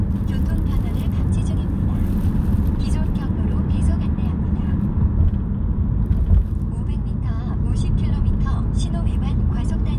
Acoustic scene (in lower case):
car